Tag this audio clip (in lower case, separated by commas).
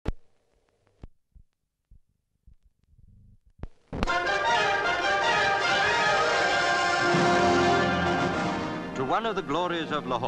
speech, silence, music